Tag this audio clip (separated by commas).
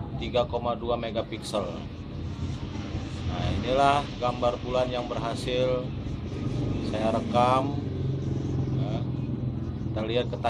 Speech